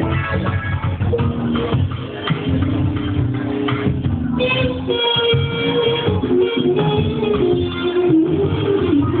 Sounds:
Guitar, Musical instrument, Music, Strum, Electric guitar, Plucked string instrument

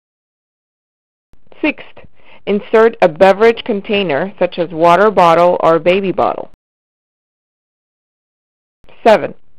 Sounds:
Speech

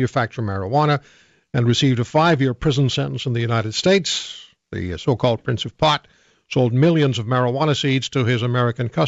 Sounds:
Speech

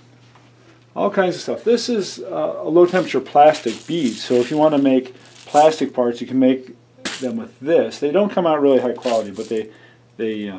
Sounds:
inside a small room, Speech

